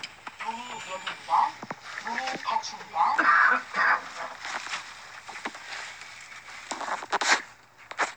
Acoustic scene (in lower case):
elevator